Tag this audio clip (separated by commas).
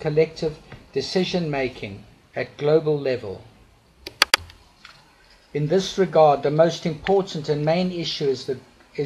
Speech, Male speech, monologue